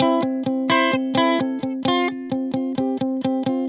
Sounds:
musical instrument, music, guitar, electric guitar, plucked string instrument

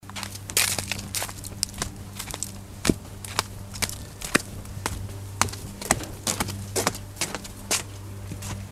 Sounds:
walk

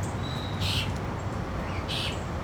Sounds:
animal, bird, wild animals

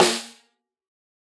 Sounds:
drum, percussion, musical instrument, music, snare drum

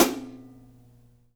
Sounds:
music, musical instrument, percussion, cymbal, hi-hat

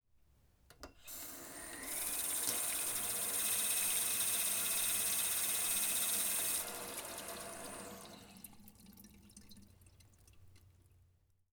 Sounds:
sink (filling or washing), faucet, home sounds

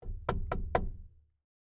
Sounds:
wood, domestic sounds, door, knock

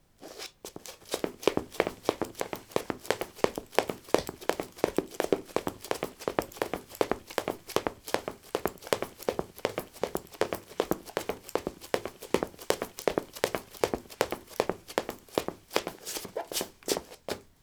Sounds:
run

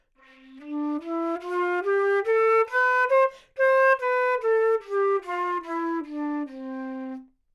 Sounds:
woodwind instrument, musical instrument, music

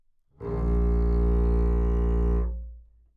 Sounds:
bowed string instrument, music, musical instrument

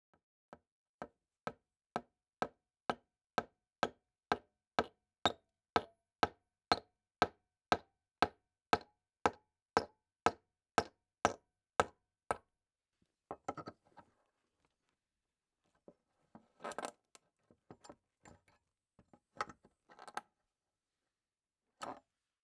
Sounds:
hammer, tools

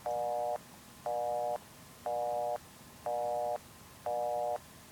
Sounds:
alarm, telephone

